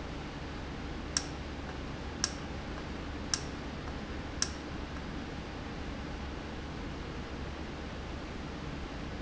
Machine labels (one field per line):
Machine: valve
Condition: normal